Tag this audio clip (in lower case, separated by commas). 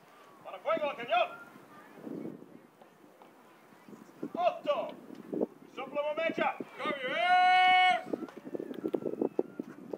firing cannon